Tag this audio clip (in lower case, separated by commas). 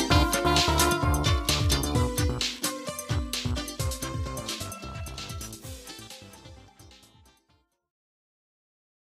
video game music, music